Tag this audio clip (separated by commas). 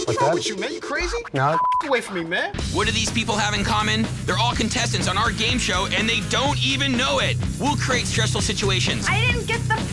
Speech, Music